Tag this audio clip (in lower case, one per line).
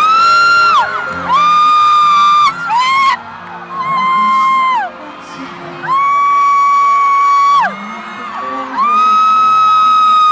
music